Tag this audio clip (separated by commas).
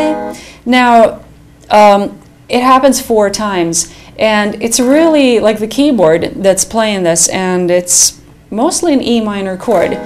Speech, Musical instrument, Music, Plucked string instrument, Guitar